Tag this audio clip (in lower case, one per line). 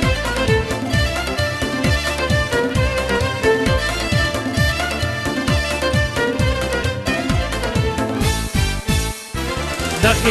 music